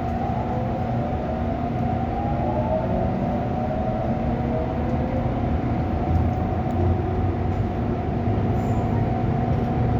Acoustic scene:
subway train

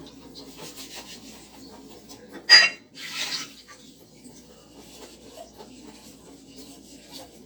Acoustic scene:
kitchen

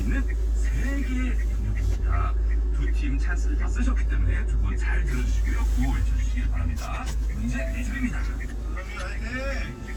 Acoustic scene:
car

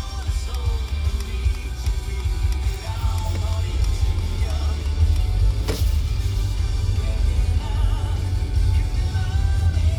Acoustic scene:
car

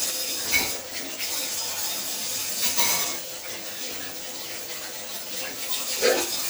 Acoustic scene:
kitchen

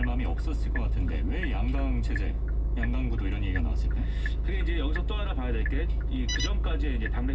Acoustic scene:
car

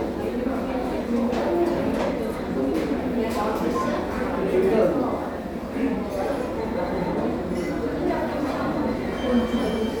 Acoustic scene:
crowded indoor space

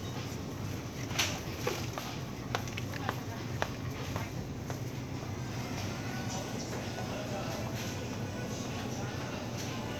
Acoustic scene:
crowded indoor space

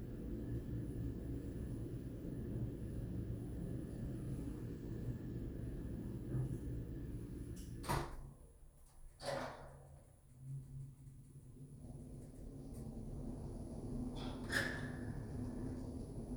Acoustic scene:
elevator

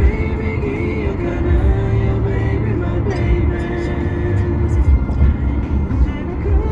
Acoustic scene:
car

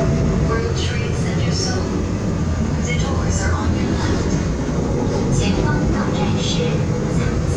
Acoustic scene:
subway train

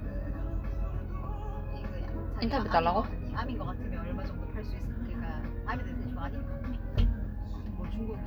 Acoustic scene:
car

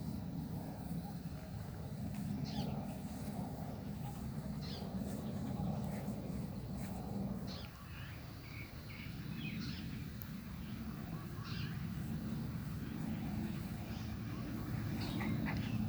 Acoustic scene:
park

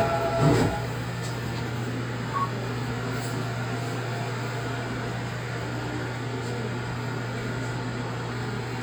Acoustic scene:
subway train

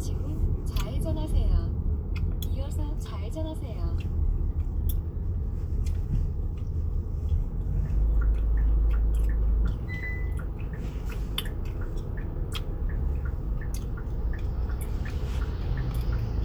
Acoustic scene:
car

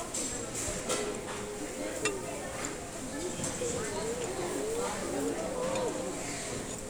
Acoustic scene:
restaurant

